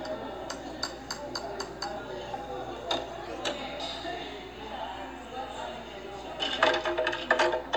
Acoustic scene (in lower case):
cafe